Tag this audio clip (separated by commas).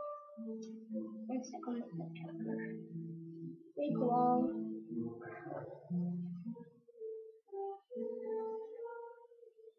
Music, Speech